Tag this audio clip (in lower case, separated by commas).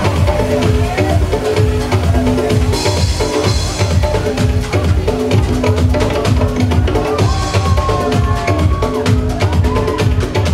electronica, music